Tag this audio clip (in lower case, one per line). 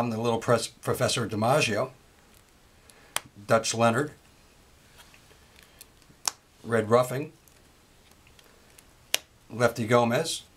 speech